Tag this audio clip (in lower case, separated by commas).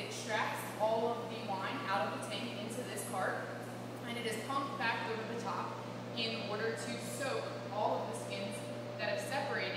speech